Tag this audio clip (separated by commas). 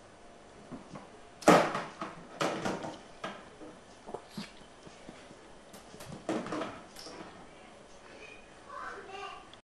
Speech